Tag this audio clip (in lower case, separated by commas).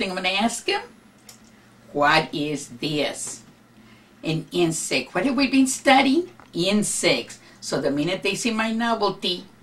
speech